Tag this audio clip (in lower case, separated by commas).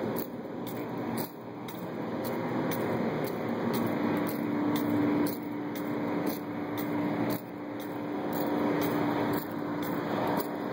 vehicle